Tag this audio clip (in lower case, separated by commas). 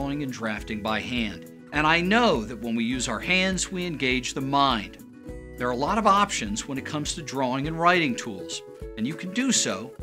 music, speech